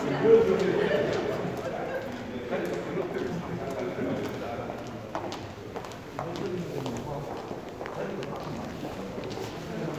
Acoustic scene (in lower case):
crowded indoor space